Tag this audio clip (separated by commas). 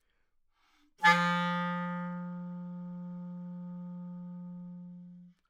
Musical instrument, Music, woodwind instrument